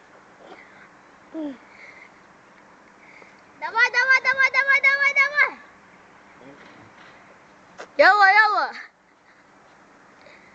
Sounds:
outside, urban or man-made
speech

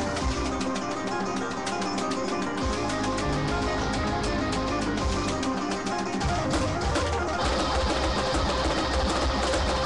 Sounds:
music
musical instrument
guitar
strum
plucked string instrument

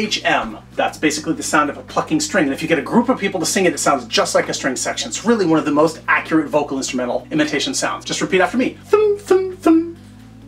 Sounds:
speech

